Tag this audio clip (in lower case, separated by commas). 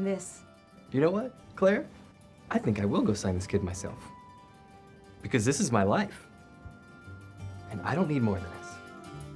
speech, music